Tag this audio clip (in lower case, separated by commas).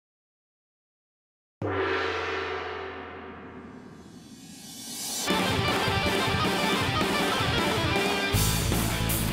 music